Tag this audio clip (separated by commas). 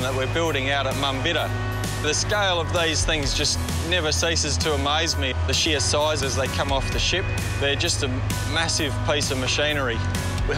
Music, Speech